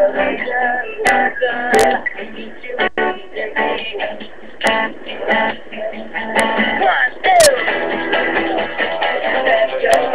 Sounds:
male singing
music

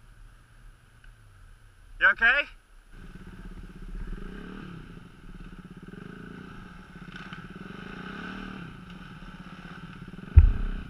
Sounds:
speech

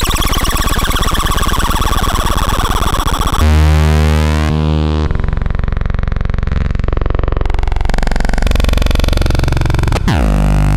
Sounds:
synthesizer

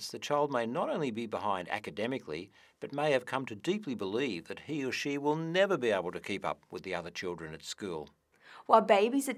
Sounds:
speech

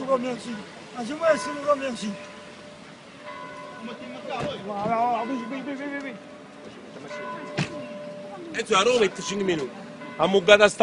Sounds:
vehicle
speech

